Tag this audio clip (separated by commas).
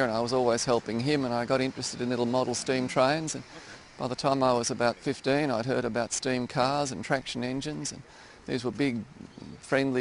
Speech